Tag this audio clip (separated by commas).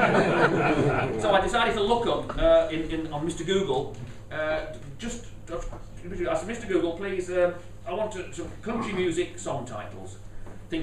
Speech